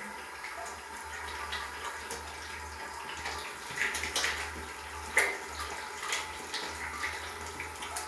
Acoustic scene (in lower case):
restroom